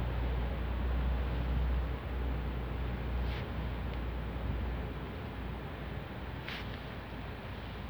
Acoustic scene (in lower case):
residential area